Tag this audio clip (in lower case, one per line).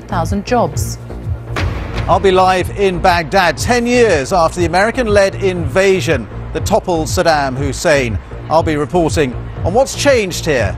music
speech